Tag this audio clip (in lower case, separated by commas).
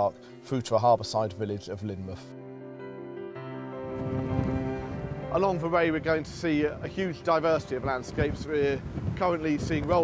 speech, music